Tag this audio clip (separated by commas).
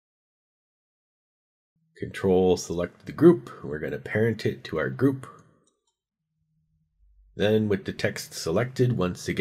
Speech